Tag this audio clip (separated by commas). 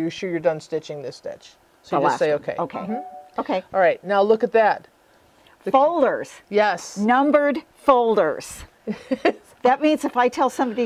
Speech